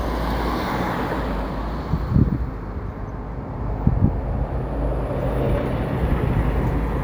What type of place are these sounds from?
street